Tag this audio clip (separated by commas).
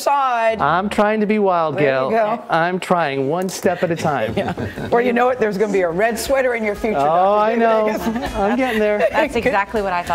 woman speaking